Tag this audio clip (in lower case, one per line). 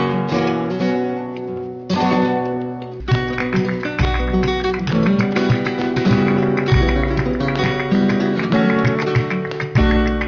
musical instrument
music
guitar
strum
plucked string instrument